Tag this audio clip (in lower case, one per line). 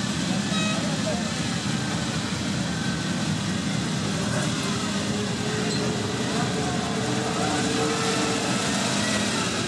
speech